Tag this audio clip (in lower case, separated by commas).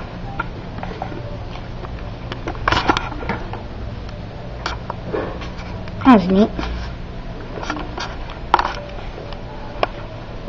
speech, inside a small room